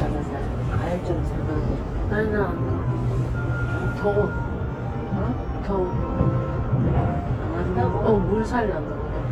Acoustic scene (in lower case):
bus